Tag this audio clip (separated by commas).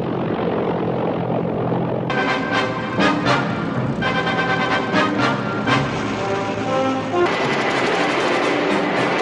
Music